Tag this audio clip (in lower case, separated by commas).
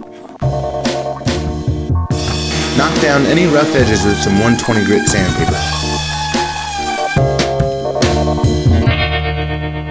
music, speech